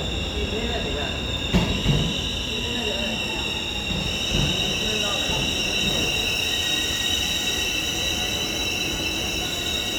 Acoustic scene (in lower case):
subway station